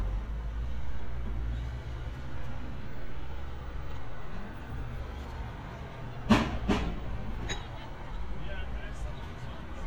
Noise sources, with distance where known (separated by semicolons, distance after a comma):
engine of unclear size; person or small group talking